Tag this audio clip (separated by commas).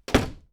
Slam, home sounds, Wood, Door